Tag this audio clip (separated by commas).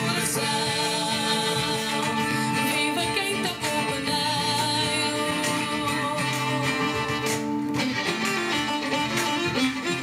Singing, Music